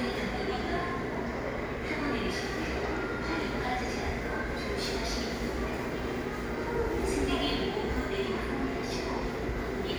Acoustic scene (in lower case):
subway station